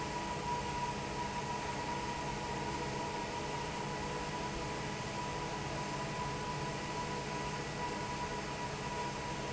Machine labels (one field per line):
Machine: fan